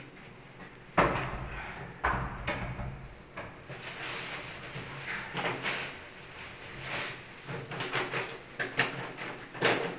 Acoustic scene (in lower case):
restroom